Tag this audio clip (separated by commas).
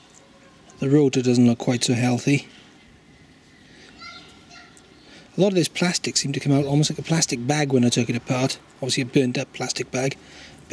Speech